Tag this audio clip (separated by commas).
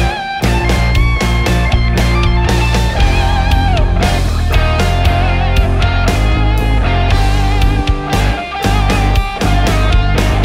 Music, Progressive rock